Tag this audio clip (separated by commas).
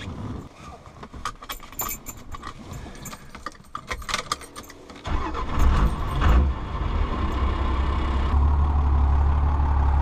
Car